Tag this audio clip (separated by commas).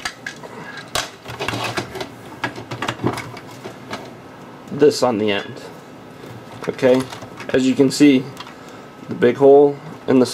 Speech, inside a small room